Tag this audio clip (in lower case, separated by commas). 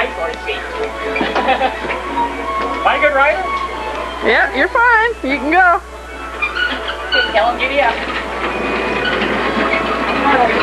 music, speech